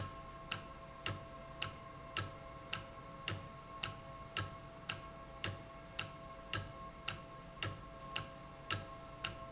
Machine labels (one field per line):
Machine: valve